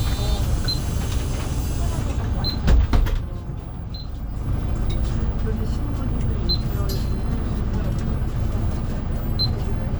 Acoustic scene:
bus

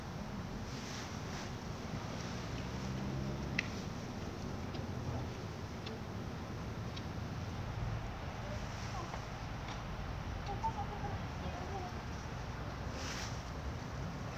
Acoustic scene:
residential area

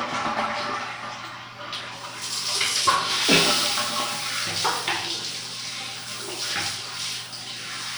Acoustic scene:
restroom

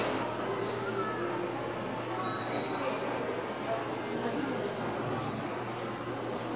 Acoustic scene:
subway station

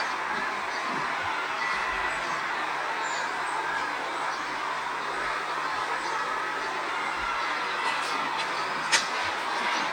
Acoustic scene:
park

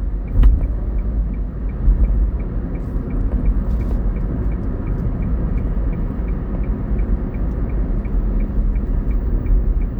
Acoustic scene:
car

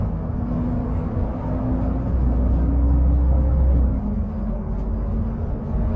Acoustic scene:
bus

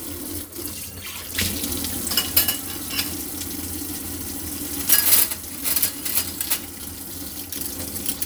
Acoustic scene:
kitchen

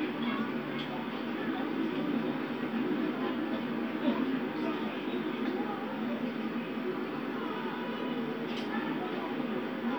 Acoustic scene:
park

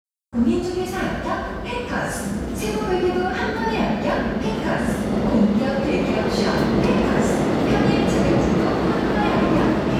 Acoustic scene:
subway station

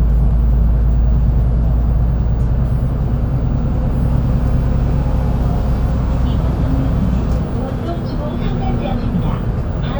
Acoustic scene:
bus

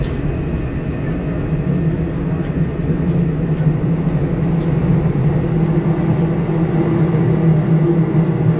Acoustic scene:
subway train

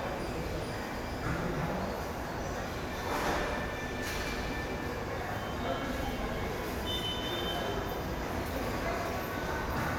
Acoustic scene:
subway station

